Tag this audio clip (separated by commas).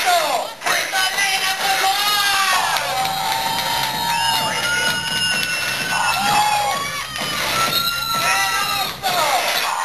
Speech, Music